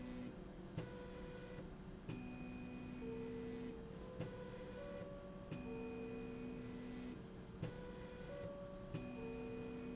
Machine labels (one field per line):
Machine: slide rail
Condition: normal